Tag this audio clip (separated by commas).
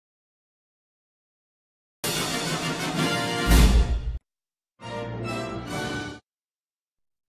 Music